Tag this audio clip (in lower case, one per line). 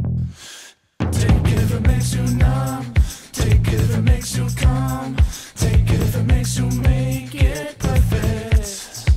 music
soundtrack music